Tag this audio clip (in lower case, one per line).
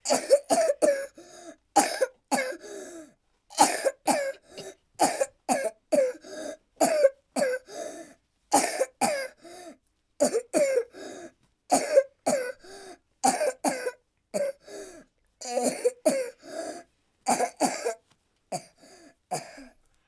cough
respiratory sounds